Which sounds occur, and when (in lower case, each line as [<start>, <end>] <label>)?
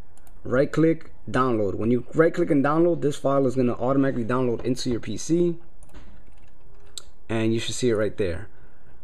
[0.00, 9.03] mechanisms
[0.14, 0.31] clicking
[0.39, 1.00] man speaking
[1.21, 1.98] man speaking
[2.11, 5.59] man speaking
[4.51, 4.65] generic impact sounds
[5.76, 6.05] generic impact sounds
[6.20, 6.88] generic impact sounds
[6.94, 7.11] tick
[7.24, 8.47] man speaking
[8.47, 8.93] breathing